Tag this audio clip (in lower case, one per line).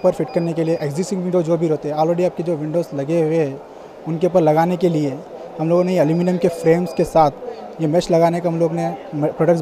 speech